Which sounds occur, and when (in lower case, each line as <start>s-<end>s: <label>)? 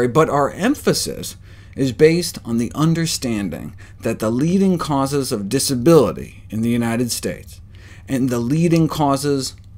0.0s-9.7s: mechanisms
0.0s-1.3s: male speech
1.4s-1.7s: breathing
1.8s-3.7s: male speech
3.8s-4.0s: breathing
4.0s-6.2s: male speech
6.4s-7.4s: male speech
7.7s-8.0s: breathing
8.0s-9.5s: male speech
9.7s-9.7s: male speech